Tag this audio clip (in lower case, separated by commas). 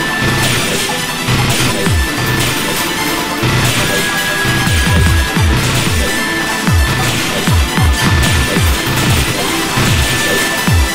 theme music, dance music, music